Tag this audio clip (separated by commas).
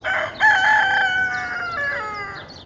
Fowl, Animal, livestock, rooster